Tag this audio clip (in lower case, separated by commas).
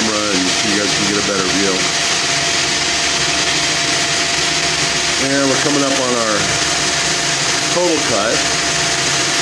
inside a large room or hall, tools, speech